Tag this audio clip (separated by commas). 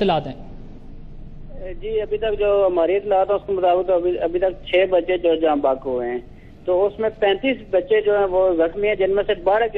Speech